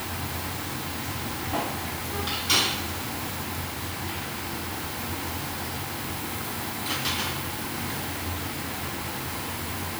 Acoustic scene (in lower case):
restaurant